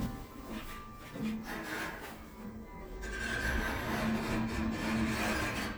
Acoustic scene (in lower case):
elevator